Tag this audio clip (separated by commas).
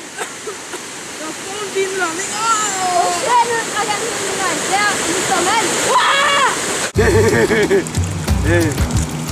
Stream